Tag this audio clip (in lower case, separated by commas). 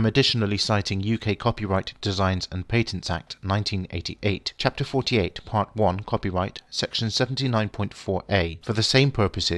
speech